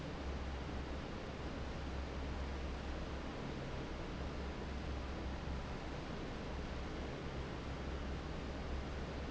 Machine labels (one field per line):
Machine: fan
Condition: normal